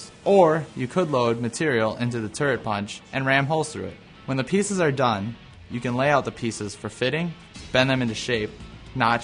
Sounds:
speech
music

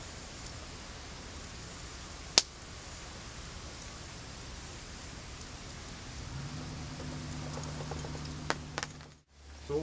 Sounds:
speech

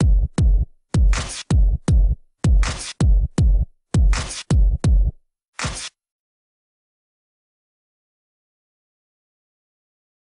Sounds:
music
silence
dubstep

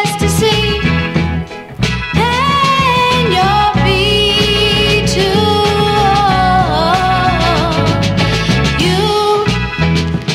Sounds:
soul music
gospel music
music

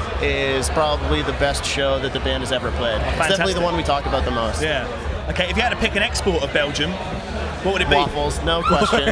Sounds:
inside a public space
speech

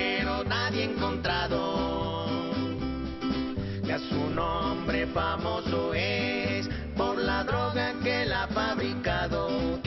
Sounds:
music

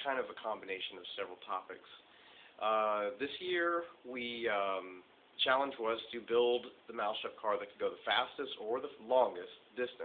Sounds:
speech

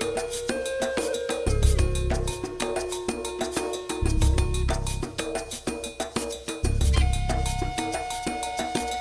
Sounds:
music

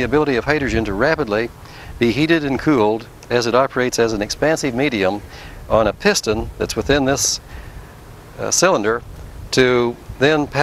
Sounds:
speech

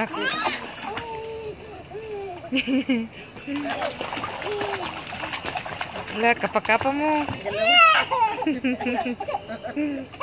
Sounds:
splashing water

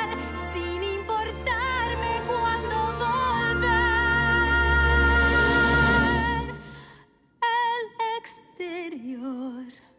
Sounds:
people humming

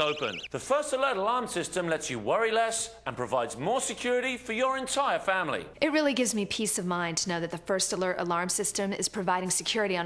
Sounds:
speech

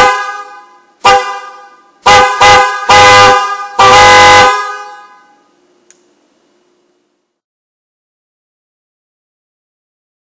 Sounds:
car horn

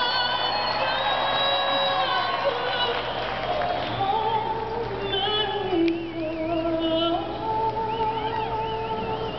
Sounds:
female singing

